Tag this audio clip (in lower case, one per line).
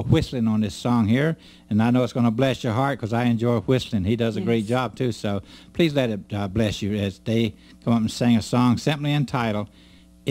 speech